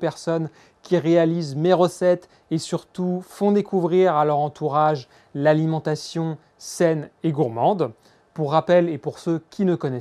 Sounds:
Speech

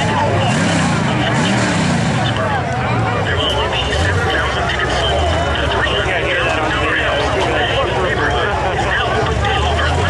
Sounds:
Speech

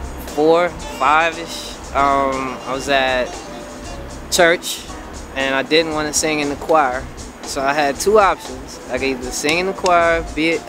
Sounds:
Music, Speech, Percussion

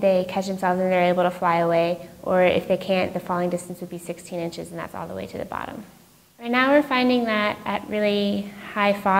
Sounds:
Speech

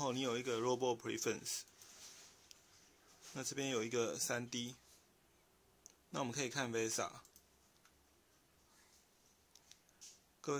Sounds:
Speech

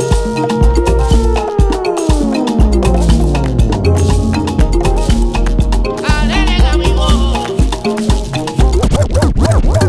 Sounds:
playing theremin

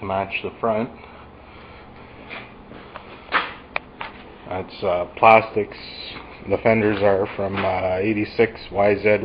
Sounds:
Speech

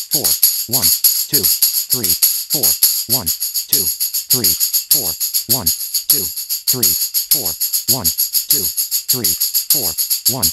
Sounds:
playing tambourine

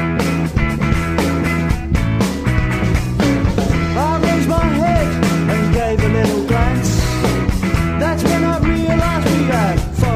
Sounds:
Music

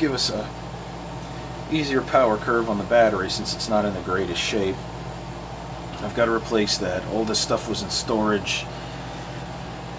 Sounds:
Speech

